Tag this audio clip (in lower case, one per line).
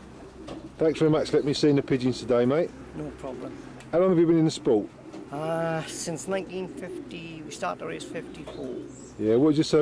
bird
speech
animal